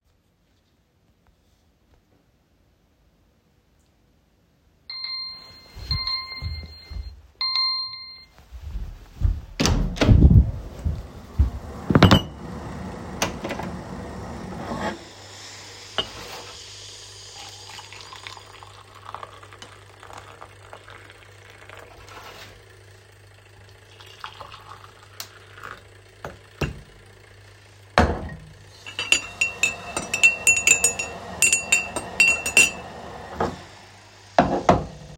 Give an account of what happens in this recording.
The phone alarm went off. Then I went into the kitchen through a door placed down the recording device. I turned off the stove and poured the boiling water into two cups and placed the pot back down then sturring the hot water in the cup once.